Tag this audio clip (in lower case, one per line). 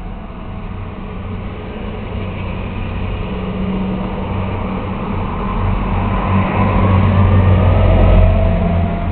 truck
vehicle